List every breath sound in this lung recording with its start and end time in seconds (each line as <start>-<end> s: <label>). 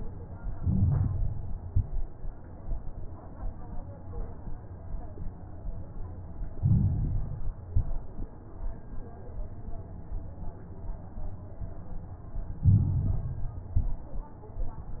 0.47-1.54 s: inhalation
0.47-1.54 s: crackles
1.61-2.14 s: exhalation
1.61-2.14 s: crackles
6.54-7.60 s: inhalation
6.54-7.60 s: crackles
7.70-8.34 s: exhalation
7.70-8.34 s: crackles
12.65-13.72 s: inhalation
12.65-13.72 s: crackles
13.72-14.36 s: exhalation
13.72-14.36 s: crackles